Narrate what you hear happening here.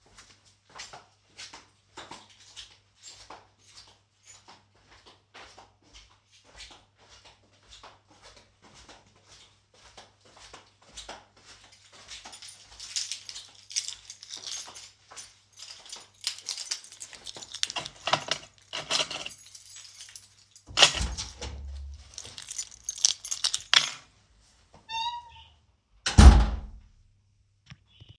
I started walking at the entrance, I shook a keychain near the entrance. Then I opened the door and walked into the room and closed door.